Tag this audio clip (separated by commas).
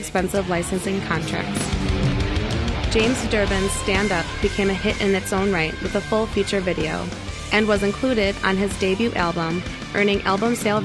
Music, Speech